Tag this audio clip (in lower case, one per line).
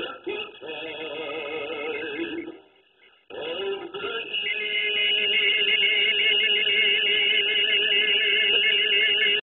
music
male singing